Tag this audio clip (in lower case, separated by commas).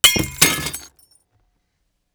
shatter, glass